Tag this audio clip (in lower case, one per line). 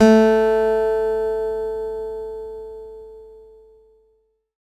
musical instrument
plucked string instrument
music
acoustic guitar
guitar